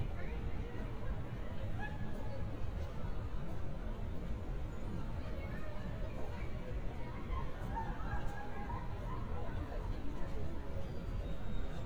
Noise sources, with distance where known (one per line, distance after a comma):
person or small group talking, far